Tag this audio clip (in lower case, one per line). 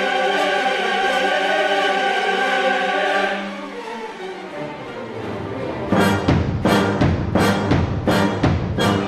drum
orchestra
music
choir
drum kit
timpani
musical instrument